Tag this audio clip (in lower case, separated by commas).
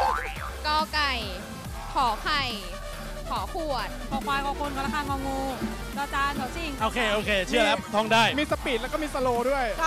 speech, music